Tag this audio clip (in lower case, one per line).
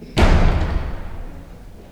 door
domestic sounds
slam